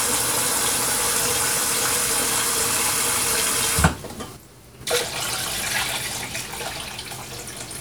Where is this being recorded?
in a kitchen